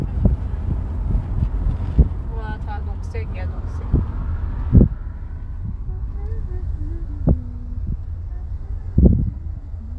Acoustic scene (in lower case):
car